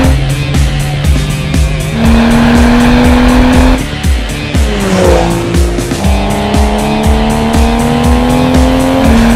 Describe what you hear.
A music is played while a fast car moves and accelerates